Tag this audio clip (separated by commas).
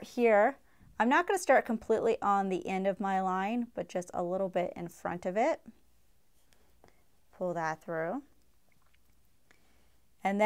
inside a small room, Speech